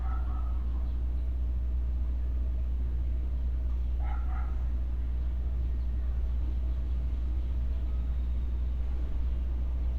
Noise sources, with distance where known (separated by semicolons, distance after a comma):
dog barking or whining